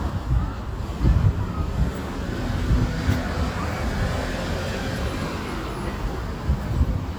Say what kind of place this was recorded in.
street